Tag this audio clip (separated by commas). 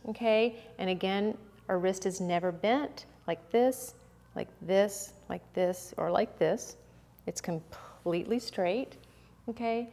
Speech